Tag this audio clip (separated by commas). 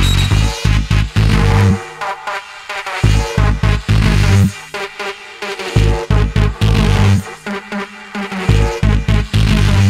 Music, Electronic music